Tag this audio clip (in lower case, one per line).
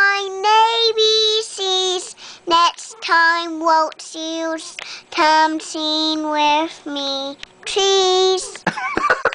child singing